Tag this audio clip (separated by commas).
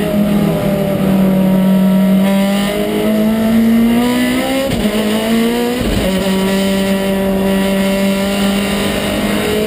Motor vehicle (road), Vehicle, Car